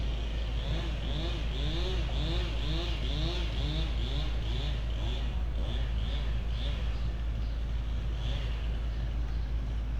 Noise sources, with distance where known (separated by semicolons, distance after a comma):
engine of unclear size